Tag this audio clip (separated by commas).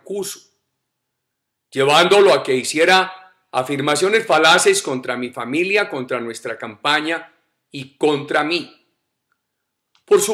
Speech